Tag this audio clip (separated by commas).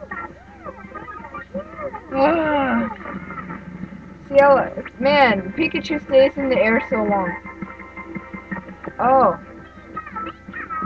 Music, Speech